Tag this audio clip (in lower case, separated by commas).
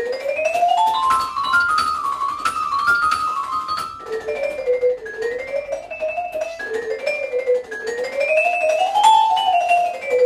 vibraphone, marimba, keyboard (musical), percussion, musical instrument, piano